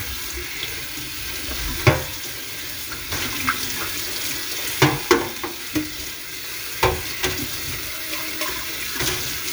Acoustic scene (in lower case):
kitchen